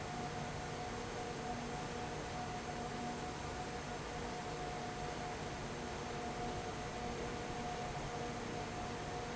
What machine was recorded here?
fan